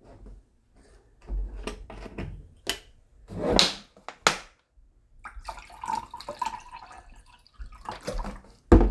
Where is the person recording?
in a kitchen